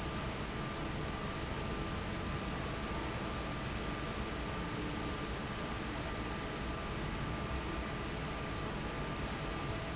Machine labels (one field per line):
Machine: fan